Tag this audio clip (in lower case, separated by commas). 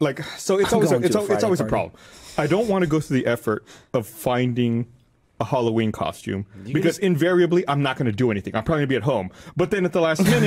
speech